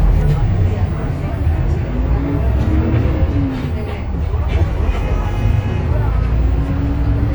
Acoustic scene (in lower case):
bus